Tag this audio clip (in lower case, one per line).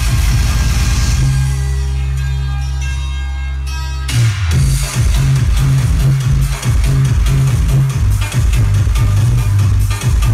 music